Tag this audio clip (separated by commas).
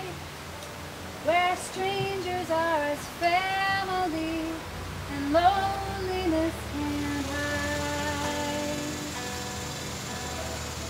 Music